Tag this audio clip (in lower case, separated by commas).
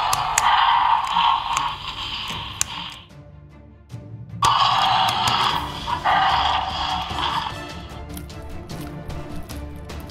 dinosaurs bellowing